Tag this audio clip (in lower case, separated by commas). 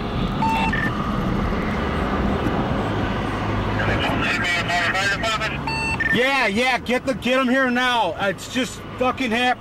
vehicle, speech